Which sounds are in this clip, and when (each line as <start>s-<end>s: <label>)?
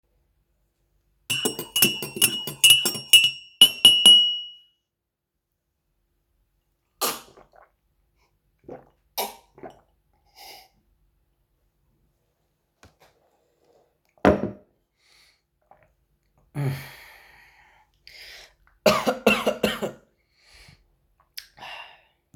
1.0s-4.7s: cutlery and dishes
13.9s-15.0s: cutlery and dishes